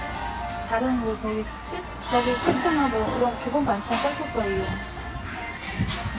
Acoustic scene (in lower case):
restaurant